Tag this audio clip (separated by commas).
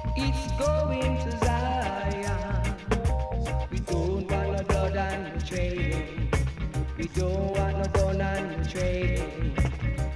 Music